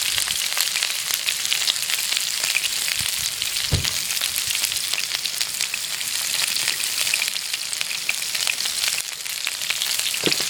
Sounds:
home sounds, frying (food)

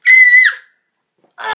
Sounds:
screaming, human voice

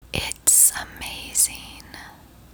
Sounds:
human voice, speech, whispering

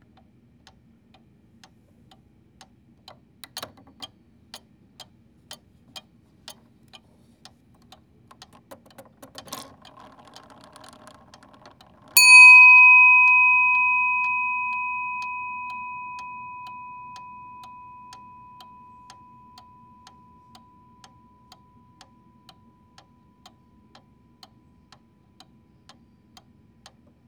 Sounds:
clock, mechanisms

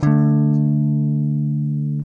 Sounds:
plucked string instrument, musical instrument, strum, music, guitar, electric guitar

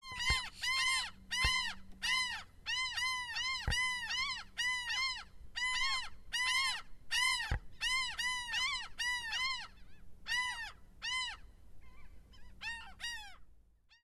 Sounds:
animal, wild animals, seagull, bird

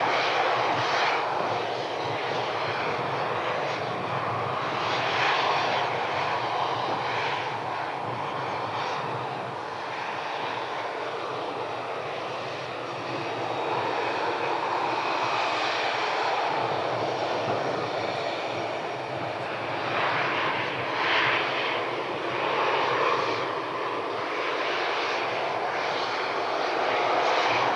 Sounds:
vehicle, aircraft

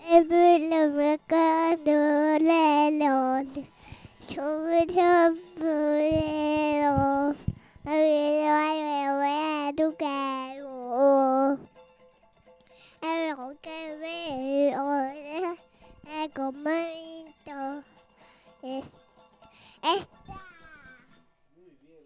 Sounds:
human voice, singing

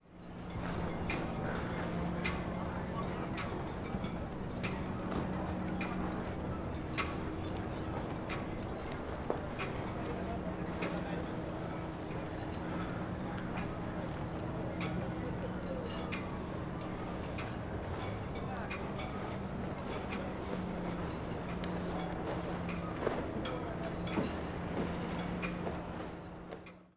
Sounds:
water, ocean

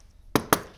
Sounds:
domestic sounds, knock, door

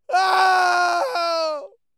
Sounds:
screaming, human voice

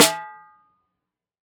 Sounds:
drum, music, snare drum, percussion, musical instrument

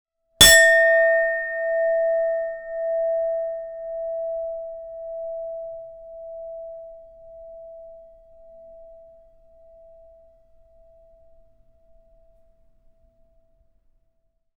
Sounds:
chink, glass

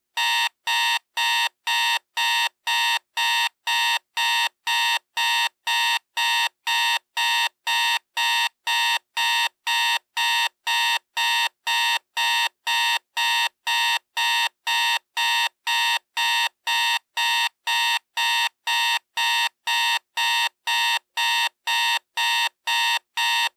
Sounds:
alarm

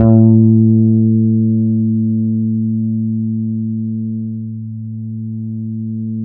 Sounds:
music, bass guitar, musical instrument, guitar, plucked string instrument

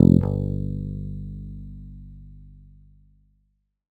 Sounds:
musical instrument, music, bass guitar, plucked string instrument, guitar

